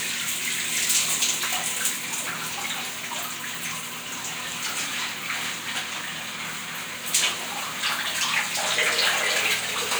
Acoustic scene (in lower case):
restroom